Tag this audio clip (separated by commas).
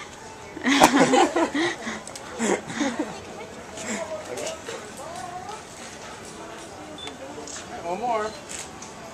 Speech